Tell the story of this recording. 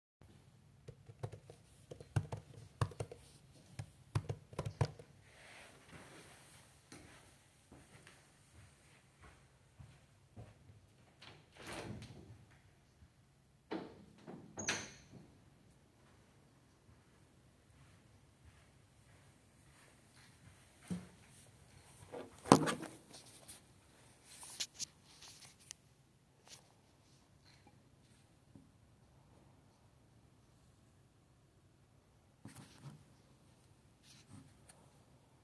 Working on my laptop then get up to open the windows in the room and then come back to seat and pickup the phone